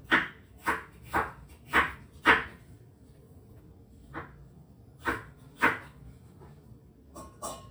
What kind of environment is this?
kitchen